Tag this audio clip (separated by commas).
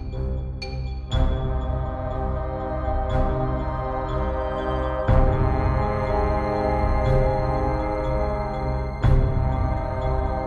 Music